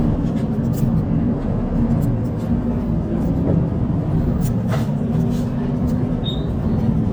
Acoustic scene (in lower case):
bus